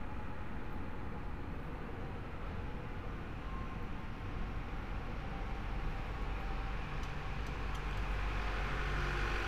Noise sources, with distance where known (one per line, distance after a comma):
engine of unclear size, near